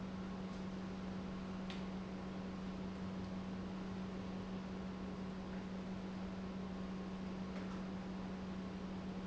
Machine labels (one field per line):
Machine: pump